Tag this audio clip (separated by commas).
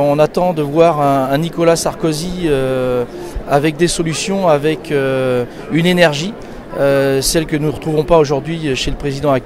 Speech